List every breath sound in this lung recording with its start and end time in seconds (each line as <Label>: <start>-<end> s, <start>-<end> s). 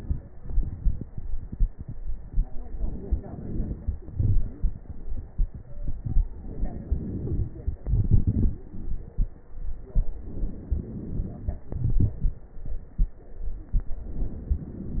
Inhalation: 2.65-4.03 s, 6.37-7.83 s, 10.19-11.71 s, 14.05-15.00 s
Exhalation: 0.35-2.63 s, 4.03-6.35 s, 7.84-10.17 s, 11.73-14.05 s
Wheeze: 4.33-4.74 s, 7.01-7.32 s, 13.63-14.05 s
Crackles: 0.35-2.63 s, 2.66-4.01 s, 7.84-10.17 s, 10.19-11.71 s, 14.05-15.00 s